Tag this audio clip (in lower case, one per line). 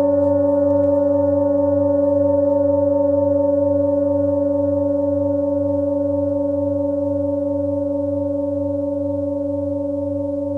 singing bowl